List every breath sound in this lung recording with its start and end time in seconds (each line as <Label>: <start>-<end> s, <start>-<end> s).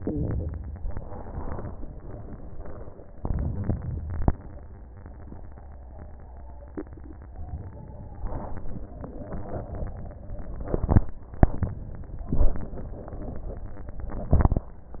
Inhalation: 3.18-4.31 s